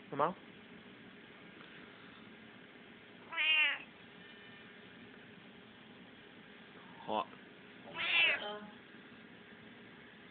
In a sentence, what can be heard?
A man says something then a cat meows followed by a woman saying something in the background